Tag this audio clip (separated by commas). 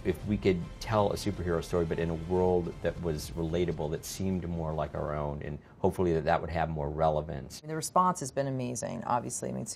Speech, inside a small room, Music